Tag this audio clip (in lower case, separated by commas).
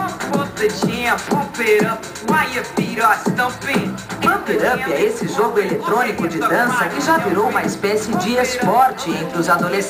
music, speech